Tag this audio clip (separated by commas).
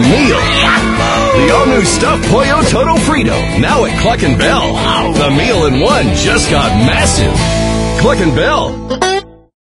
Music, Speech